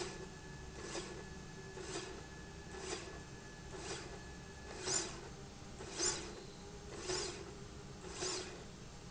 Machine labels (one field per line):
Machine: slide rail